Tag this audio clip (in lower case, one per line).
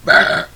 eructation